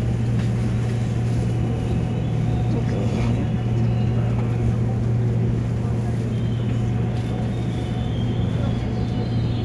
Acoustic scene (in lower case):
subway train